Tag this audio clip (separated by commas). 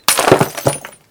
Glass, Shatter